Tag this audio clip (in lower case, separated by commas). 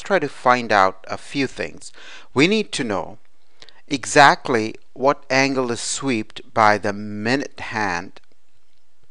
speech